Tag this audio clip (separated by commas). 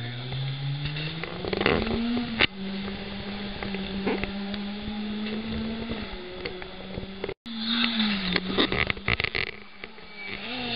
Vehicle, auto racing